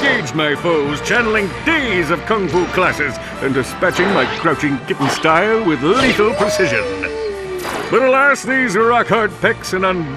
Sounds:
Music, Speech

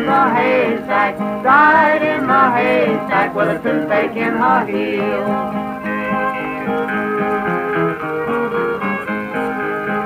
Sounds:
Music

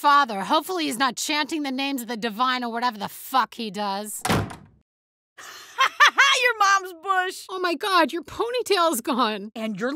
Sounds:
Speech, inside a small room

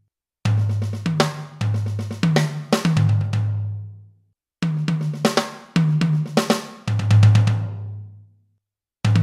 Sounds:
Music

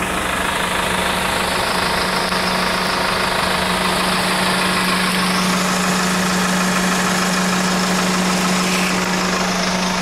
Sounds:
Truck, Vehicle

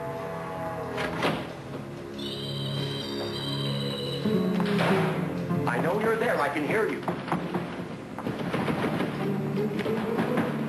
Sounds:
Speech

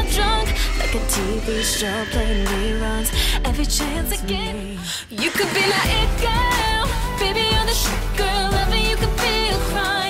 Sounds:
Pop music, Music, Fixed-wing aircraft

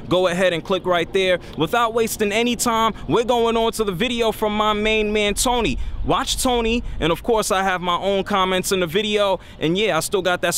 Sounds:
Speech

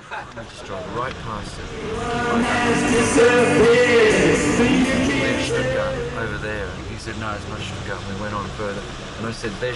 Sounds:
Singing, Music

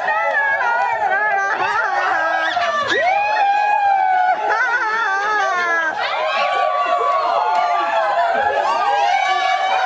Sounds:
Speech, Laughter, inside a small room

